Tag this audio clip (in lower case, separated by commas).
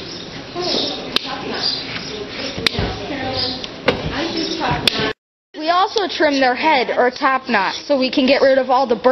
domestic animals, speech